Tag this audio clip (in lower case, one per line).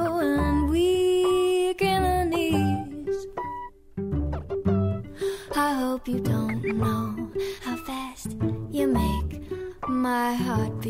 music